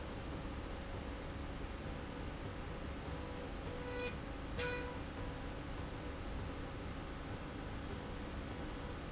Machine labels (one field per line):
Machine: slide rail